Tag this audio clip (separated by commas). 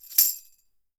Tambourine, Music, Percussion, Musical instrument